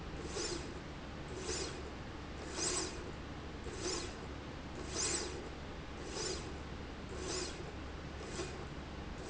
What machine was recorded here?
slide rail